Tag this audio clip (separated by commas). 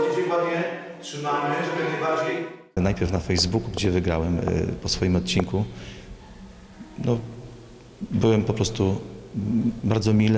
Speech, Music